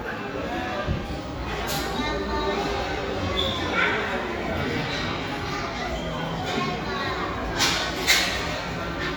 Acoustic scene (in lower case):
crowded indoor space